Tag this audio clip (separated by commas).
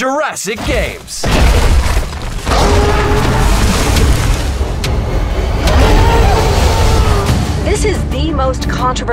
dinosaurs bellowing